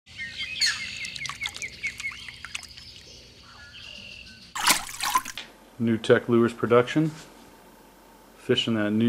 Birds calling while something splashes in water followed by a man speaking